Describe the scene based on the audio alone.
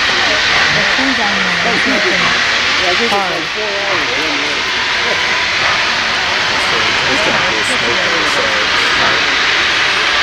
Steam engine hiss with multiple voices